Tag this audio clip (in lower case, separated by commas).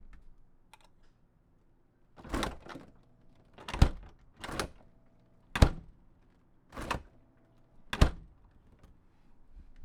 home sounds, door, slam